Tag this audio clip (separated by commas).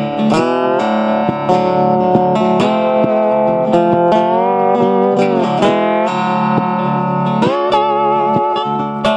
Music, Plucked string instrument, Distortion, Guitar, Musical instrument